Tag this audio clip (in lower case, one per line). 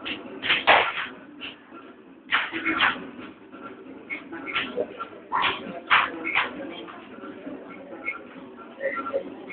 music